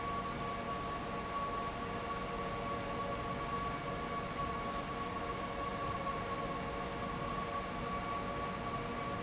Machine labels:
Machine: fan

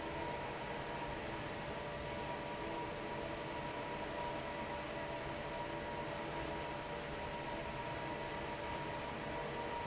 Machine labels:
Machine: fan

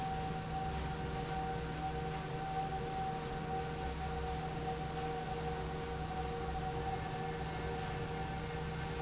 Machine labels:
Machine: fan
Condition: normal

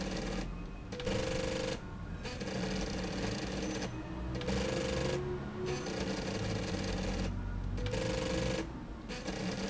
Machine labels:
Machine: slide rail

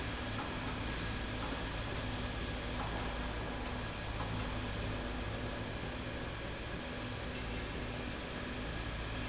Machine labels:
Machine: slide rail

